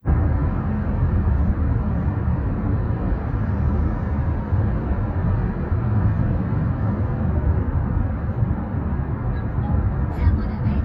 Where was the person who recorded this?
in a car